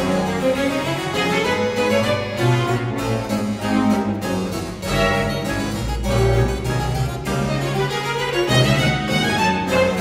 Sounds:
playing harpsichord

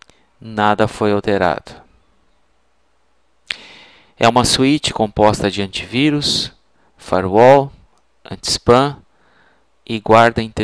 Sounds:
Speech

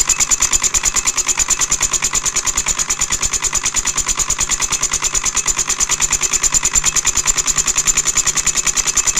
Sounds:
Engine

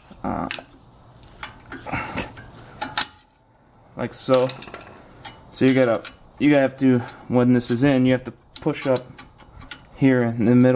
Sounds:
Speech, inside a small room

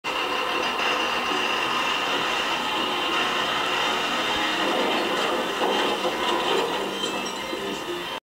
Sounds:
Music, Vehicle

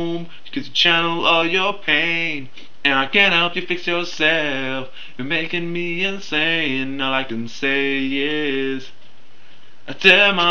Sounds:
Music, Vocal music

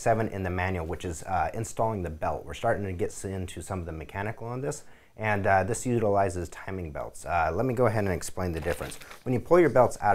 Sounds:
Speech

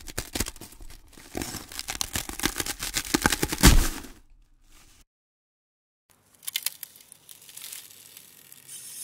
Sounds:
ice cracking

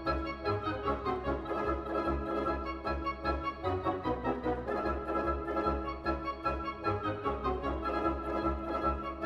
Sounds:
Music

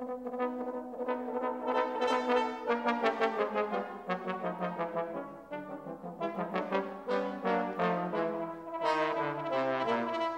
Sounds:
Music

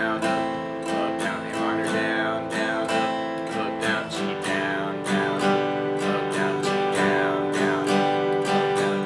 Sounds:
Strum, Music

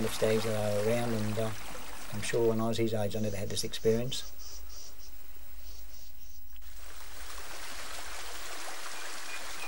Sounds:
Speech

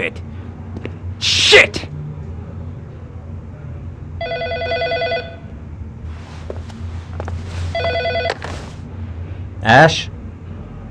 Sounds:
Speech

